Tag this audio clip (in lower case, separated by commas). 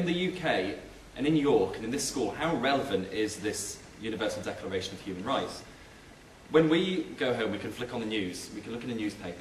speech, monologue, male speech